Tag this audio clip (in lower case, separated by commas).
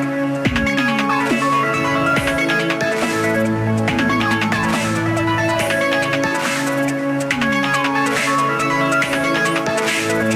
music